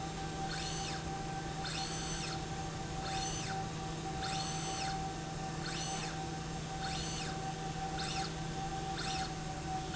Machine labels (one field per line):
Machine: slide rail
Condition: normal